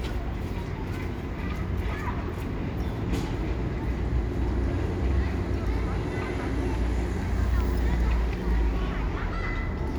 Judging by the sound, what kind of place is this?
residential area